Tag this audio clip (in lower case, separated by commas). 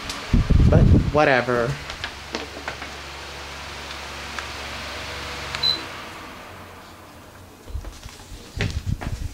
speech, mechanical fan